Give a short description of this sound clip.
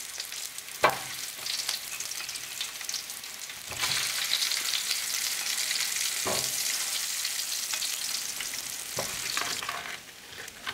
The crackling sound of frying food